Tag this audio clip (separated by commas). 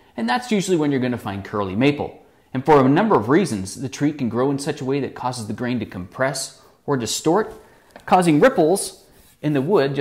Speech